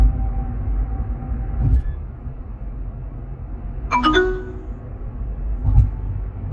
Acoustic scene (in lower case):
car